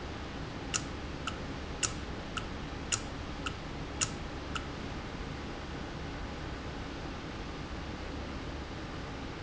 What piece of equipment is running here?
valve